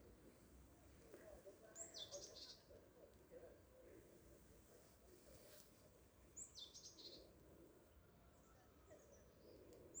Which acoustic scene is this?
park